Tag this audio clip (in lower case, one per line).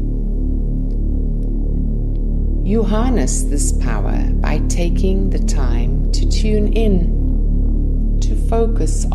music
speech